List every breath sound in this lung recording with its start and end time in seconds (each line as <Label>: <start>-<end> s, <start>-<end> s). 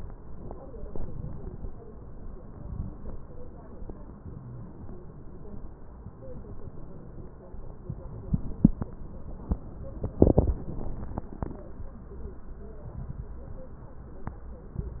Inhalation: 0.72-1.62 s, 2.48-2.94 s
Wheeze: 4.24-4.72 s
Crackles: 0.71-1.59 s